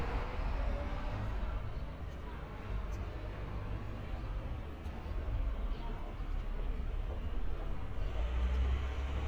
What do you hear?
engine of unclear size